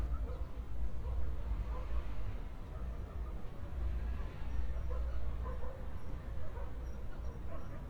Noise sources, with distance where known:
dog barking or whining, far

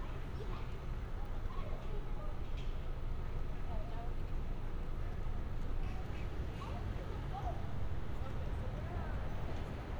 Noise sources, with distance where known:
person or small group talking, far

